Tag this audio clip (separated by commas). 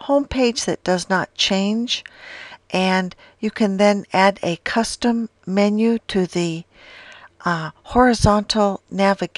Speech